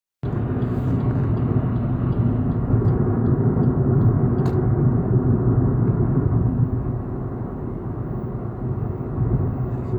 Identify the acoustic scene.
car